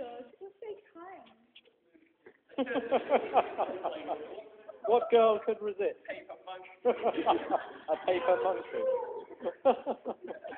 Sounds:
Speech

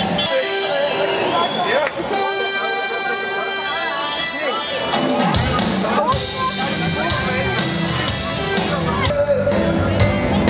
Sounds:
Speech, Music

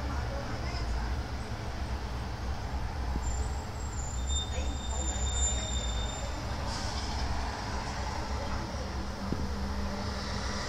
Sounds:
Speech

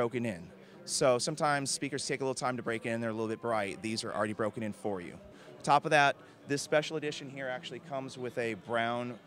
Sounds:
Speech

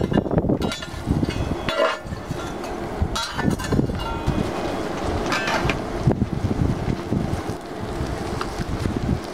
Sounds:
Wind, Fire, Wind noise (microphone)

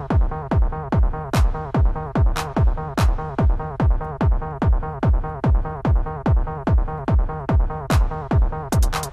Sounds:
Techno, Music, Electronic music

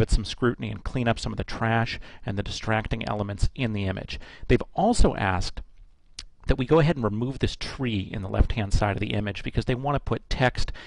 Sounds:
Speech

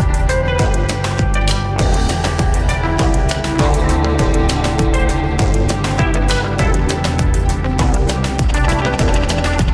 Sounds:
Music

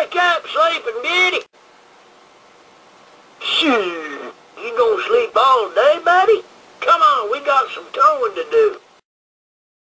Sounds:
Speech

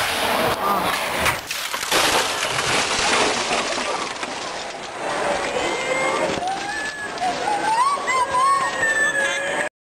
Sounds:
Speech

